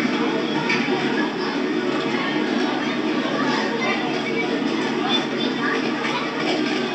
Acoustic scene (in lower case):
park